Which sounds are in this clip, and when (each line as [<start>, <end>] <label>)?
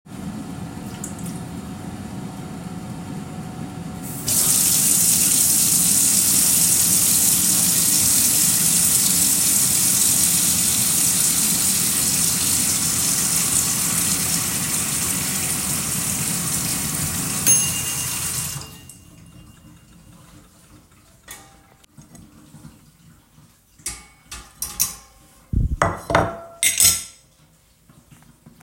[0.01, 19.42] microwave
[3.98, 18.65] running water
[20.11, 28.63] cutlery and dishes